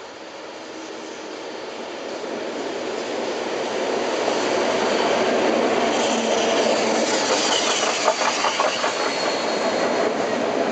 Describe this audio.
A train drives noisily over the tracks